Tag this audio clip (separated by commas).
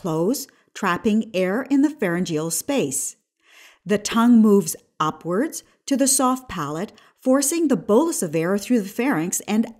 Speech